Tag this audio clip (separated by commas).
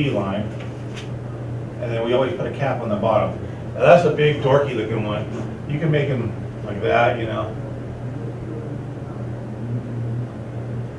Speech